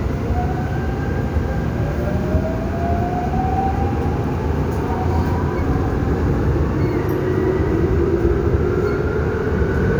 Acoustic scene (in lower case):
subway train